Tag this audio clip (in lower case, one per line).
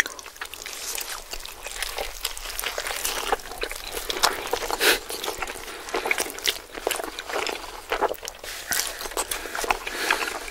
people eating noodle